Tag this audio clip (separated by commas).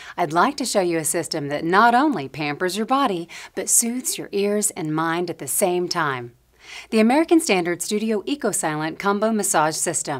Speech